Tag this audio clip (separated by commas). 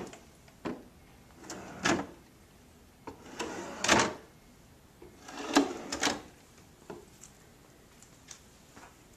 Drawer open or close